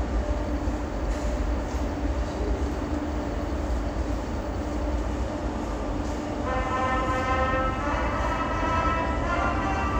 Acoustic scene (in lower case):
subway station